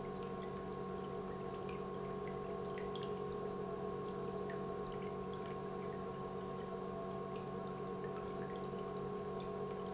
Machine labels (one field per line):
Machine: pump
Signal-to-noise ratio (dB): 6 dB